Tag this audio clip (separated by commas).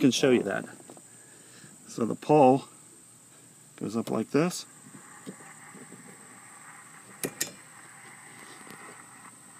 Speech